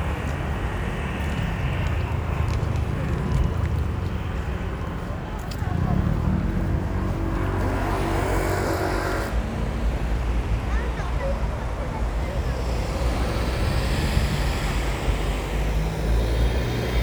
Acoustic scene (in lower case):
street